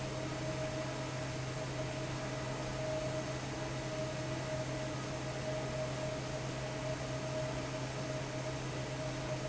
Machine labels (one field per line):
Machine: fan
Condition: normal